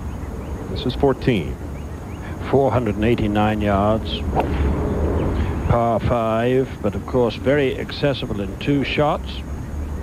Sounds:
speech

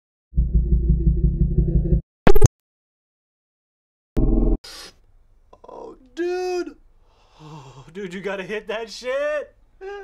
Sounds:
speech
inside a small room

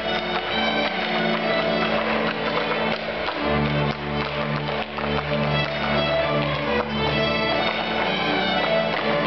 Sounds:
music
fiddle
musical instrument

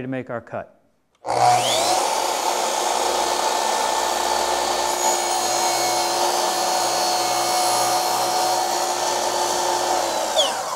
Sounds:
tools
speech

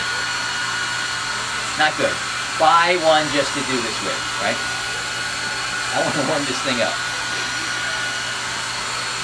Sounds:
hair dryer

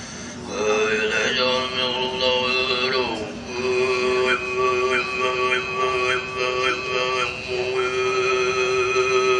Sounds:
male singing

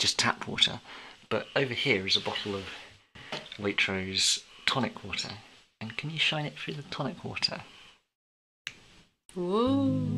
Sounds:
speech

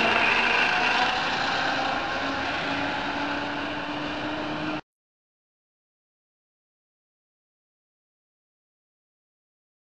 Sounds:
vehicle

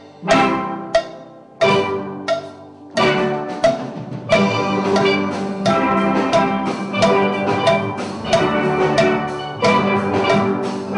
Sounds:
music
steelpan

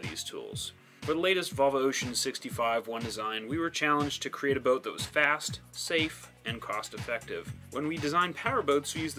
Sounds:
music
speech

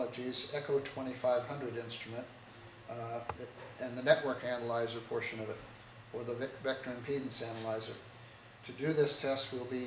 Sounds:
speech

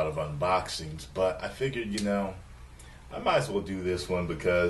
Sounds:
speech

